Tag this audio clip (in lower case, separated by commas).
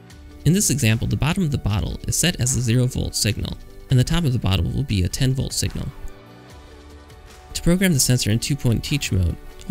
music, speech